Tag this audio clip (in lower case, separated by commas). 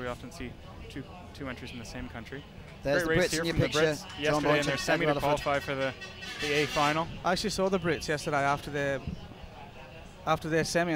speech